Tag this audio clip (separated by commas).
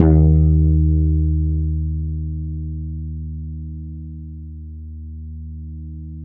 Music, Bass guitar, Guitar, Plucked string instrument, Musical instrument